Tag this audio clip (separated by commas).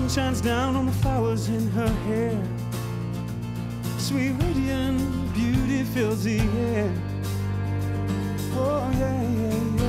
Music, Sad music